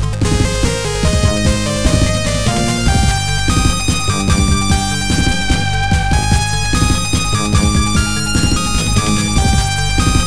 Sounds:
music

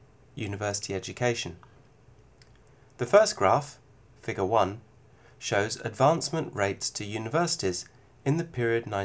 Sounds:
speech

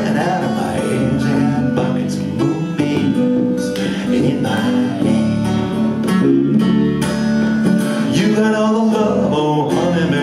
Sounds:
music

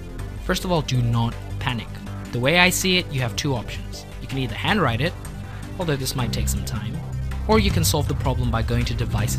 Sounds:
speech, music

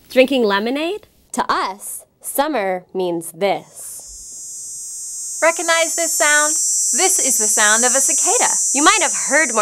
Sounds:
speech

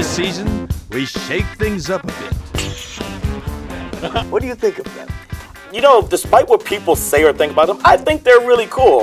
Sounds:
speech, male speech, conversation, music

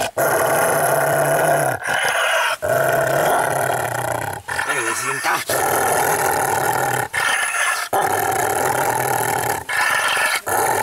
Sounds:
dog growling

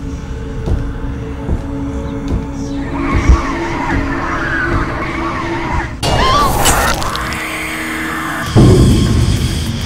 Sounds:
music

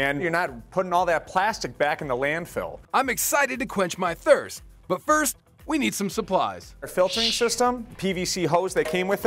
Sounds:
music, speech

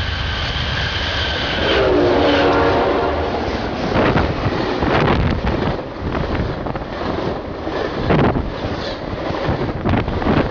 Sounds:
vehicle

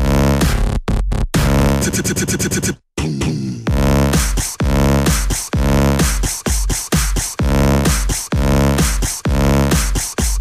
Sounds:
music, beatboxing, electronic music, vocal music

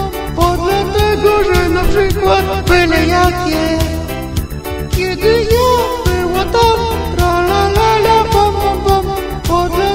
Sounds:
music

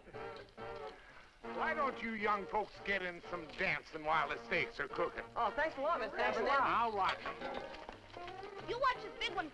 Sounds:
music, speech

